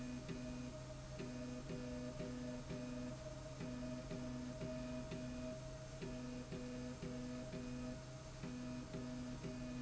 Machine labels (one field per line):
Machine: slide rail